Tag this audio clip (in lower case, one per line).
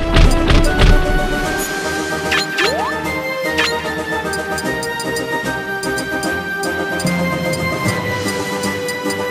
music